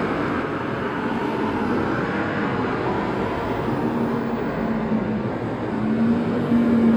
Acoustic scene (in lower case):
street